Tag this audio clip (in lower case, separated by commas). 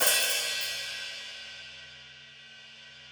cymbal, music, musical instrument, hi-hat, percussion